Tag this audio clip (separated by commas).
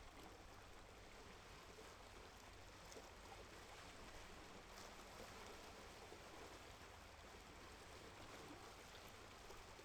Water, Ocean